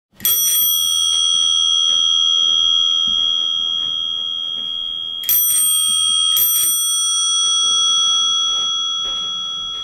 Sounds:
bicycle bell

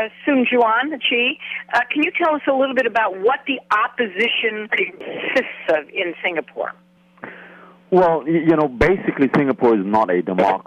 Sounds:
speech
radio

